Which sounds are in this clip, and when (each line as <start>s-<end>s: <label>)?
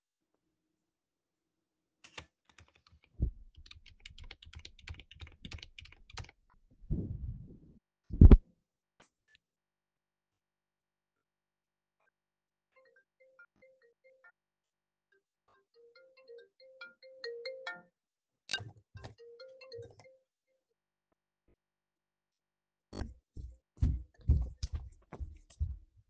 1.9s-6.9s: keyboard typing
12.6s-20.8s: phone ringing
22.9s-26.1s: footsteps
24.0s-25.3s: phone ringing